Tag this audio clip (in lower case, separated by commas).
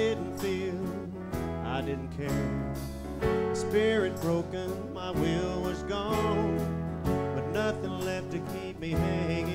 music, male singing